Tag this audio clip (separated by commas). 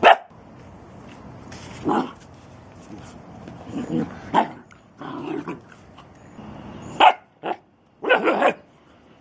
Bow-wow